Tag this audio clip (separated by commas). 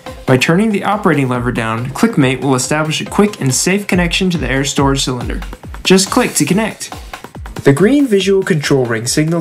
Music, Speech